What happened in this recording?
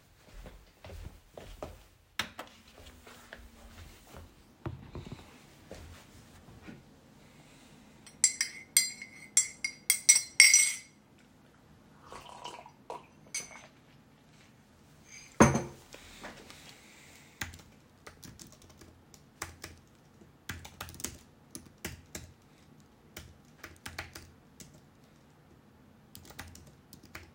I walked to the PC and pressed the power button. While the PC was booting up, I stirred my tea and took a sip. Finally, I started typing on the keyboard.